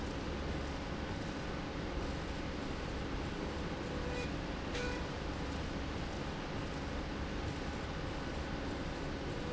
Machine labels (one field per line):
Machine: slide rail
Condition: normal